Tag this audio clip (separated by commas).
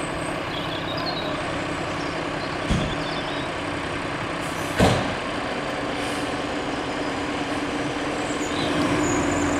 Vehicle